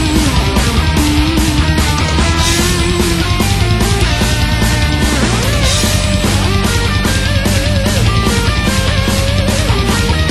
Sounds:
Music, Electric guitar, Musical instrument, Guitar, Plucked string instrument, Strum

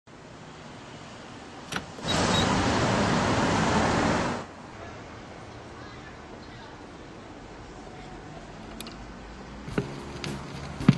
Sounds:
Speech

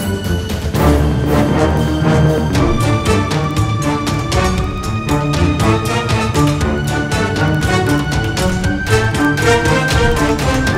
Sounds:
Music

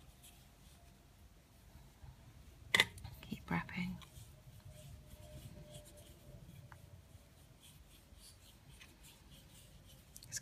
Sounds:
Speech, inside a small room

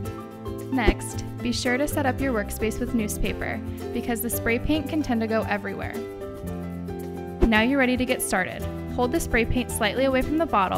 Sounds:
Music, Speech

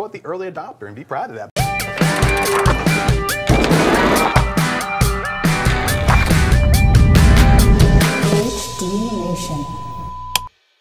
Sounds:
Speech, Music

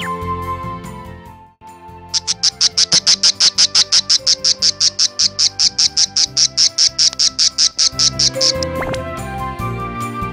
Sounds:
warbler chirping

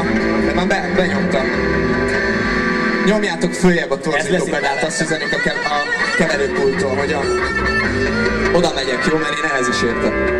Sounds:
Speech, Music

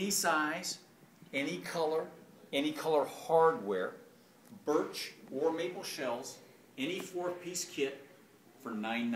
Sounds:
Speech

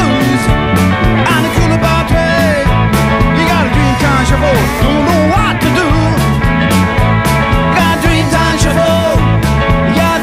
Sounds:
Music

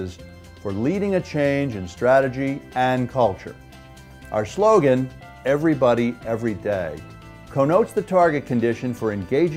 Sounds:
Music, Speech

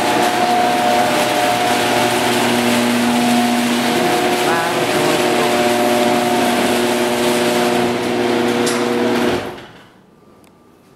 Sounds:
Speech

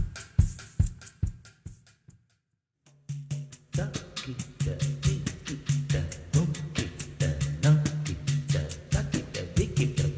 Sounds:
Music

